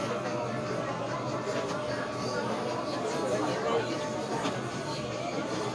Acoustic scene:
crowded indoor space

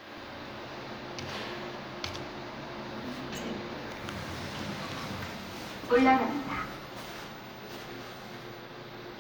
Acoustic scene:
elevator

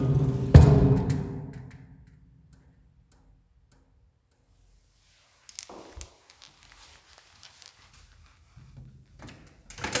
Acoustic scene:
elevator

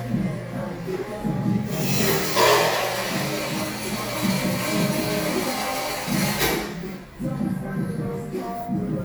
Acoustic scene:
cafe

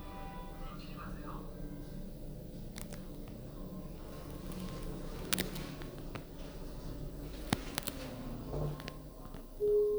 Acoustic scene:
elevator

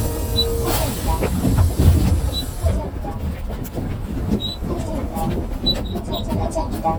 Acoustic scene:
bus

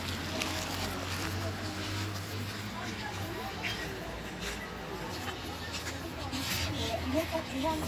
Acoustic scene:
park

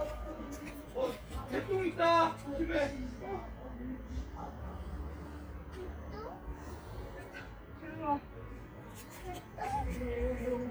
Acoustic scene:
park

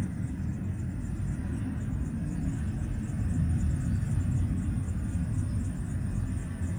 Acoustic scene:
residential area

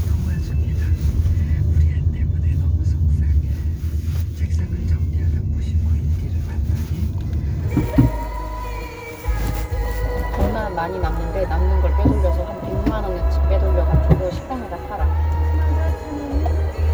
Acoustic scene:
car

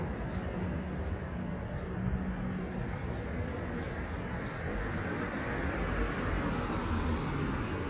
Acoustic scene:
street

